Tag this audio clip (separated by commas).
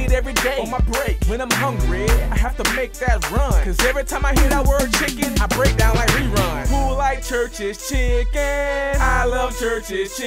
Music